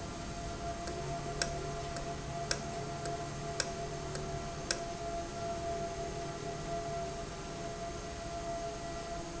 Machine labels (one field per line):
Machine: valve